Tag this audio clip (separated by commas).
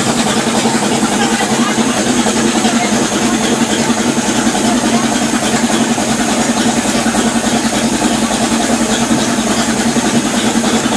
Speech